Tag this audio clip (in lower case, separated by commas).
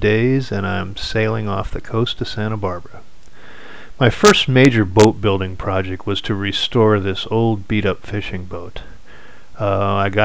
speech